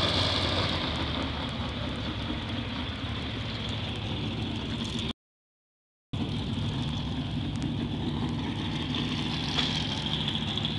A large motor vehicle engine is running close by and then fades somewhat